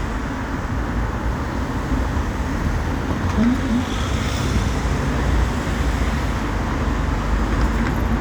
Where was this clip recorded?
on a street